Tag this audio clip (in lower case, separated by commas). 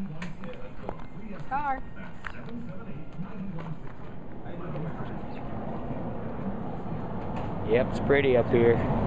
speech, outside, rural or natural